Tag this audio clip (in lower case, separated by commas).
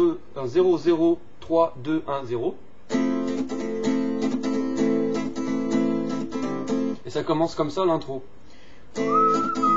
acoustic guitar, guitar, musical instrument, music, plucked string instrument, speech, strum